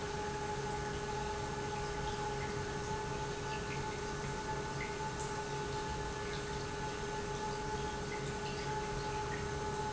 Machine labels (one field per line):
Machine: pump